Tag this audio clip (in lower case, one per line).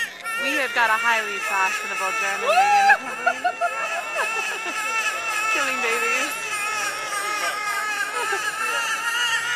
speech